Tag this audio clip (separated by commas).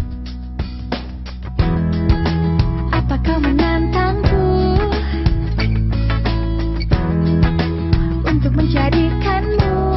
Music